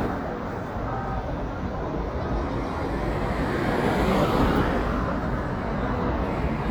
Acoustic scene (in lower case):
street